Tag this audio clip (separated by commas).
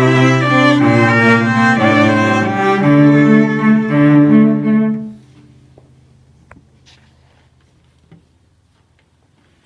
Musical instrument, Music, Cello